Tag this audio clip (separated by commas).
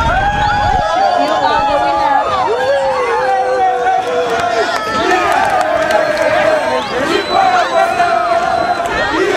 Battle cry, Crowd, Cheering